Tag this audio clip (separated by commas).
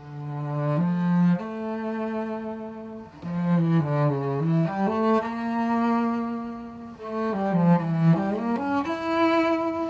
Musical instrument, Bowed string instrument, Cello, Music, Classical music